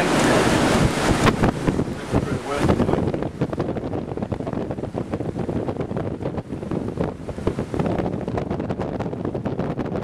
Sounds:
ocean
speech

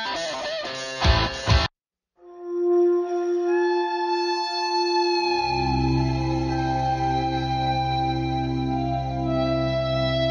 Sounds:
theremin

